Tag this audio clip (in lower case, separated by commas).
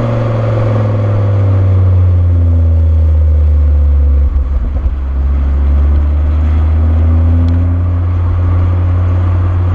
car, vehicle